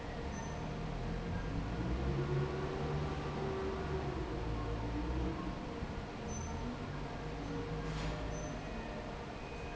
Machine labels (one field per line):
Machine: fan